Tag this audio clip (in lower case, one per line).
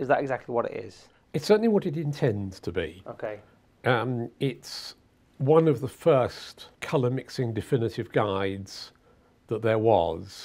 speech